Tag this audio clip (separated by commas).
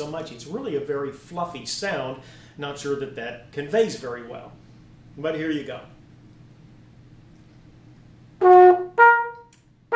Speech, Music, Trumpet